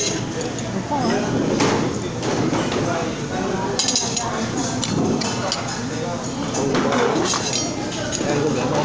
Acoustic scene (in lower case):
crowded indoor space